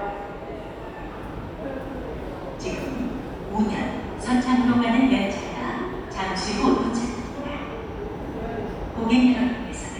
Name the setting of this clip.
subway station